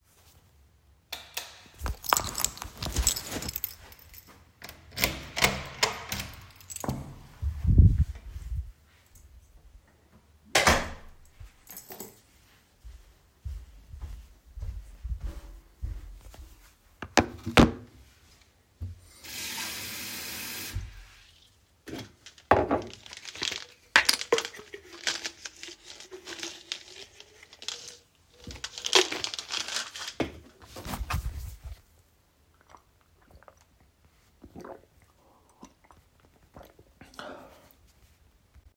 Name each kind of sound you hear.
light switch, keys, door, footsteps, running water